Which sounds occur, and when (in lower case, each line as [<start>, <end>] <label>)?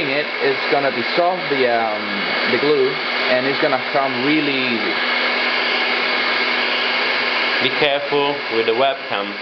[0.00, 9.41] mechanisms